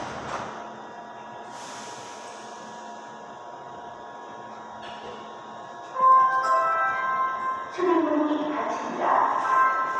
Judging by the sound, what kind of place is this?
subway station